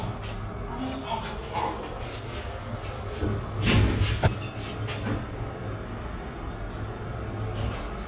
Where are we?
in an elevator